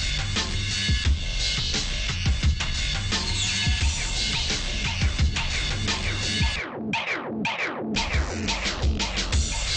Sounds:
music

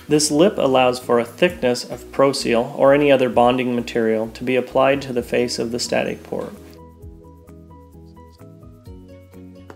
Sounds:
speech, music

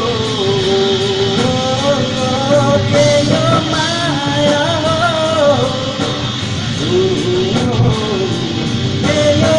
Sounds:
music, singing, vocal music

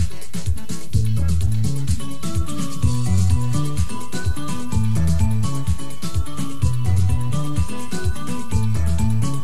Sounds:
music

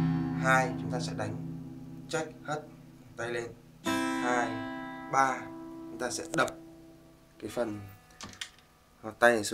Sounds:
music, speech, guitar, plucked string instrument, acoustic guitar, musical instrument, strum

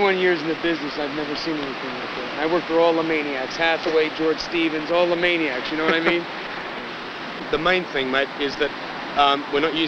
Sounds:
laughter, speech

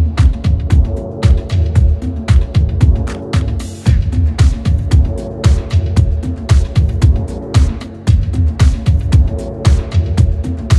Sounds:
music, disco

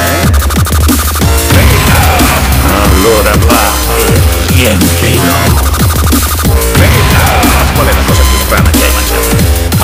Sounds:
music, dubstep, electronic music

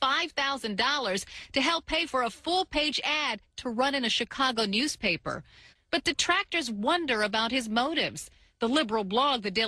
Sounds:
speech

